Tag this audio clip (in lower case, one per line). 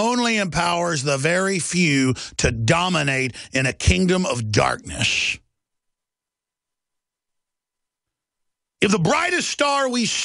speech